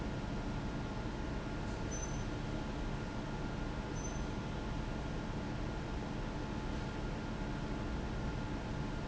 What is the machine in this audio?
fan